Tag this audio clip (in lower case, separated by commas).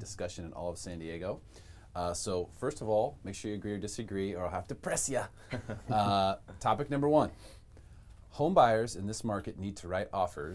speech